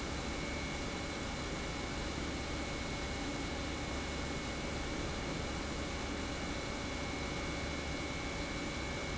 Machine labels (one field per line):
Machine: pump